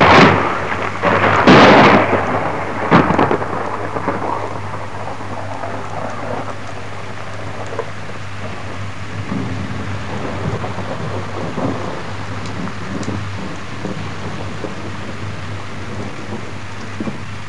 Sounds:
Thunder, Thunderstorm

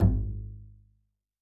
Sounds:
Music, Musical instrument, Bowed string instrument

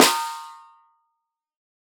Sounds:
Percussion, Musical instrument, Drum, Music, Snare drum

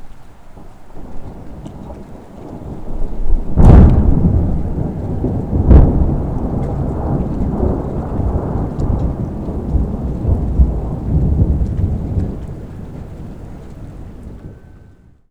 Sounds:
Thunderstorm

